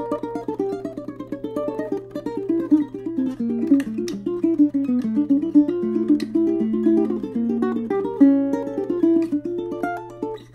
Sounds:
Musical instrument, Music, Pizzicato

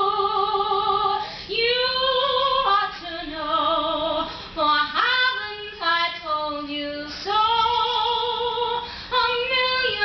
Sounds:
Female singing

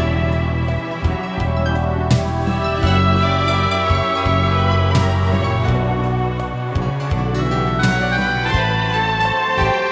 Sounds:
Music, Soundtrack music, Background music

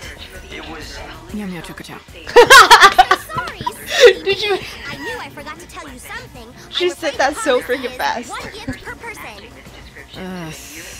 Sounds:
Speech, Music

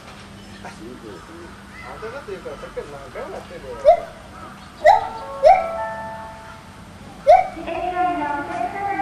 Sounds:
gibbon howling

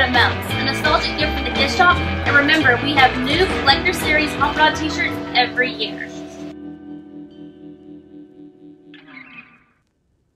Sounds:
Speech, Music

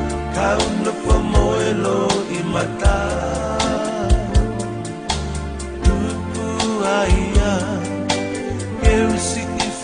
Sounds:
Music, Soul music

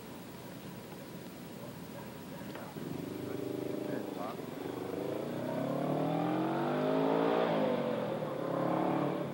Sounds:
Vehicle, Speech, Motorcycle

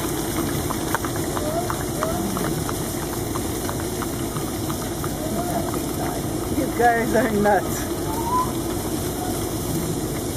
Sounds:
Speech

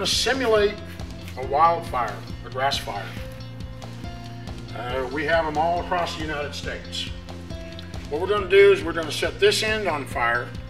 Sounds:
Music, Speech

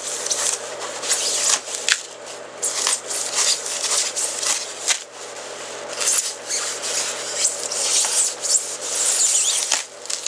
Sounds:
inside a small room

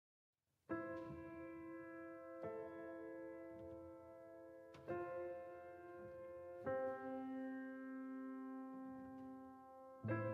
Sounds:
Piano

